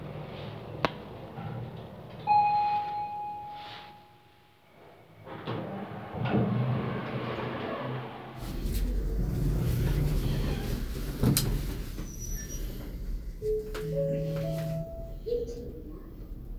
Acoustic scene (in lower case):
elevator